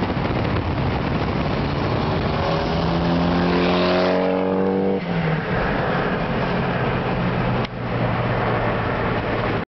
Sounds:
revving, Car, Vehicle

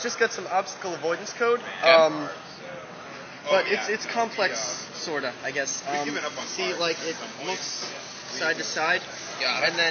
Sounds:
Speech

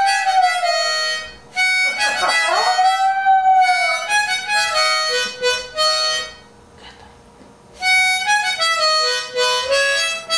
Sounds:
Bow-wow, Music

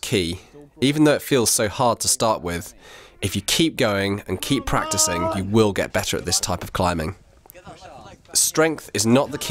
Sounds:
Speech

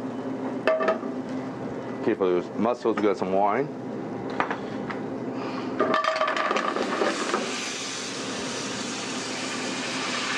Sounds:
inside a small room, Speech

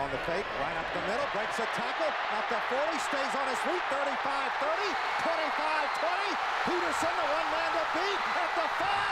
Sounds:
Speech, Run

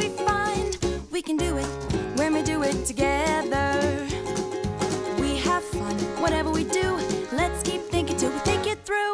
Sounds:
Music for children

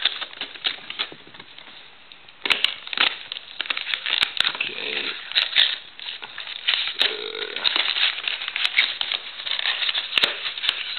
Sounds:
Speech

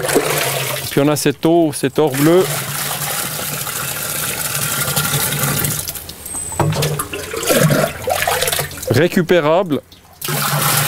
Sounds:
Water

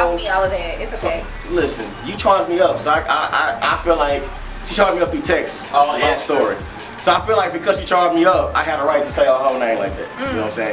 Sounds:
Speech, Music

